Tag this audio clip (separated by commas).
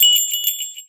Bell